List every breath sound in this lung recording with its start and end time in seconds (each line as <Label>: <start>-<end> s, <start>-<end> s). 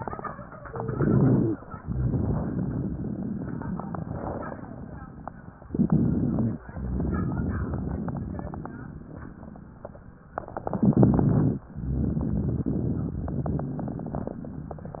Inhalation: 0.70-1.70 s, 5.69-6.63 s, 10.62-11.63 s
Exhalation: 1.75-5.02 s, 6.68-8.96 s
Wheeze: 0.70-1.59 s, 5.69-6.63 s
Crackles: 6.68-8.96 s, 10.62-11.63 s